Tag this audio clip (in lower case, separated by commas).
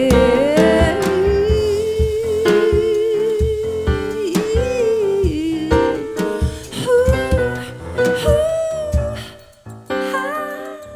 music, musical instrument, singing, drum, drum kit